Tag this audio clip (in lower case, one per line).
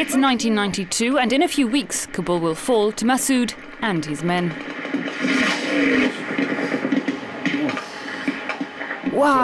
television